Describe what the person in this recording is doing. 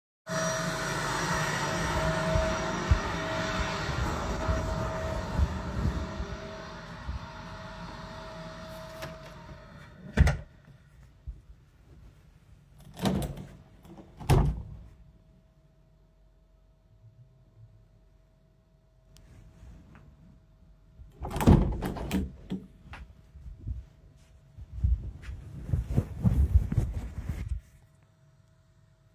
The vacuum is running in the living room. I start in the living room an go into the bedroom(door is open). There I close the door and open a window to breath fresh air. I close the window. Then I stop recording from Phone in pocket.